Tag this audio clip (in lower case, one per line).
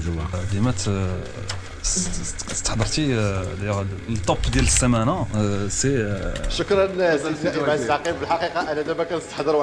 speech